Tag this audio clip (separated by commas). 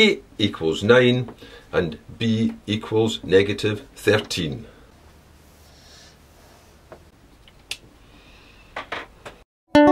Writing, Speech, Music